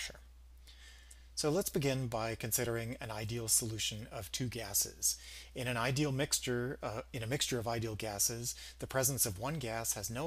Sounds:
speech

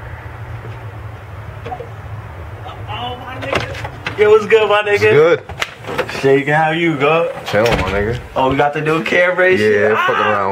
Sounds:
inside a small room
speech

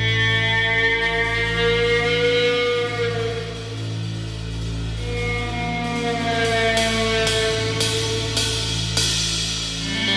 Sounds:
music

